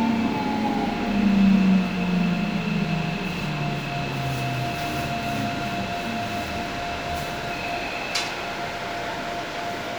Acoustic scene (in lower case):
subway train